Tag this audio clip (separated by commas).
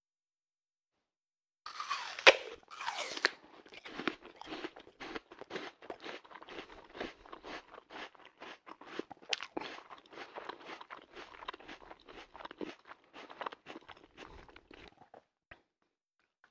Chewing